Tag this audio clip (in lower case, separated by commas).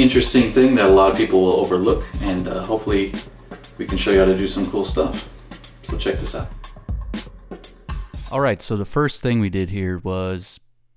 music, speech